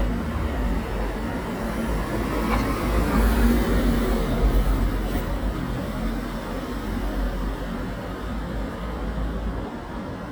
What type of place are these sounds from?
residential area